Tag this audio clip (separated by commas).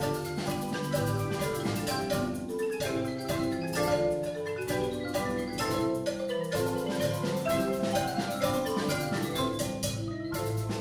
Music, playing vibraphone, Vibraphone